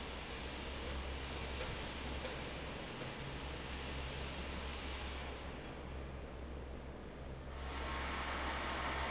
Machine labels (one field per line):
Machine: fan